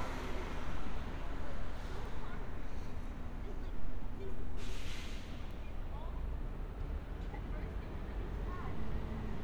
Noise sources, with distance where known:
engine of unclear size, near; unidentified human voice

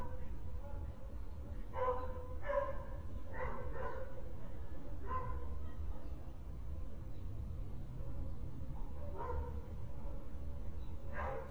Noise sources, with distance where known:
dog barking or whining

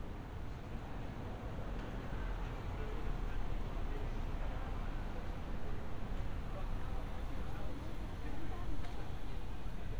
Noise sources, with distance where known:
person or small group talking, far

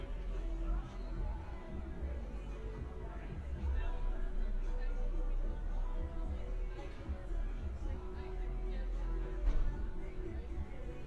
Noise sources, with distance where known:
music from a fixed source, far; large crowd

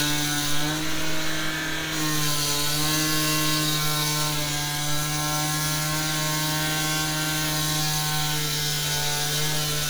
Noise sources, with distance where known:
unidentified powered saw, near

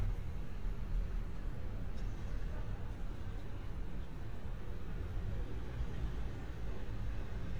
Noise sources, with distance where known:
medium-sounding engine, far

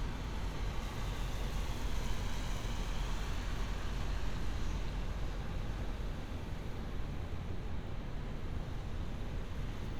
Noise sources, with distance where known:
engine of unclear size

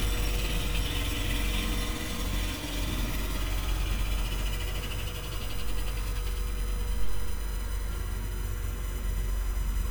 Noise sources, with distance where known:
unidentified impact machinery, near

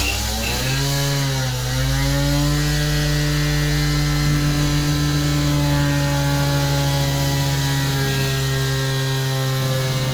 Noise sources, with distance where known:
unidentified powered saw, near

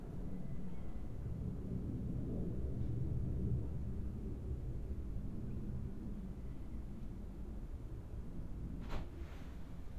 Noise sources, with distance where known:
background noise

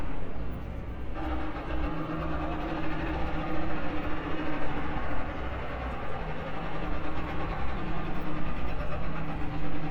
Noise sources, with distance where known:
unidentified impact machinery, near

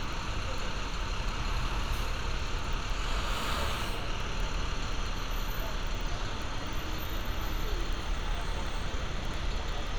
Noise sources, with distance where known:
large-sounding engine, near

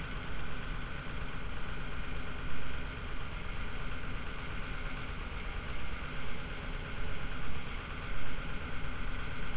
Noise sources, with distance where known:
large-sounding engine

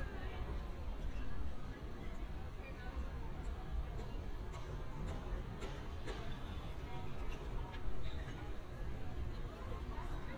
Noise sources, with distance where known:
background noise

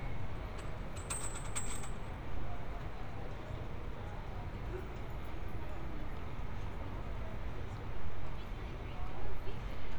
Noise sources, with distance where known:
person or small group talking

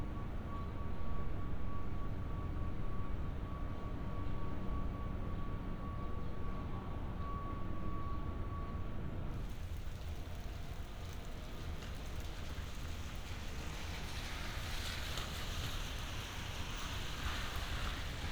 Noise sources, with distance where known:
background noise

